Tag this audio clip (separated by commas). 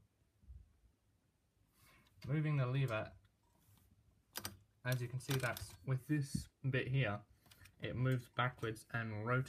typing on typewriter